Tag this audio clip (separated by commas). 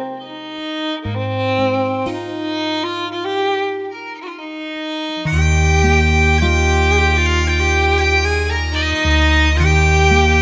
Music